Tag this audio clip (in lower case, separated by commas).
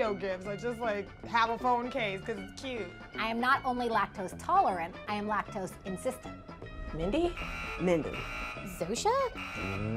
speech, music